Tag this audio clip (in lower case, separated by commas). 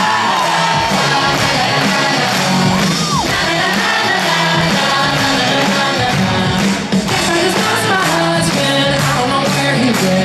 music, inside a large room or hall